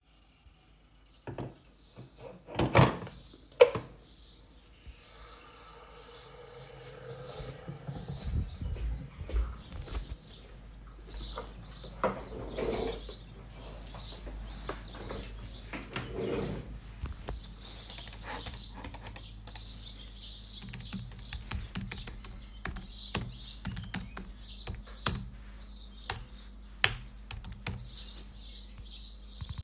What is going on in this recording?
While I was boiling water I went to the office and moved the chair and sat. Then started working on the computer by clicking the mouse and keyboard.